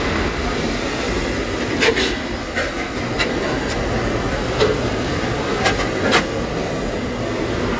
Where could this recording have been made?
in a crowded indoor space